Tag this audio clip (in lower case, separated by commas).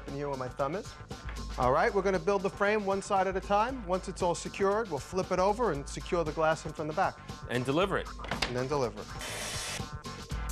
music, speech